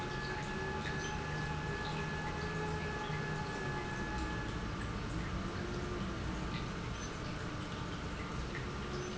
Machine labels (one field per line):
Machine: pump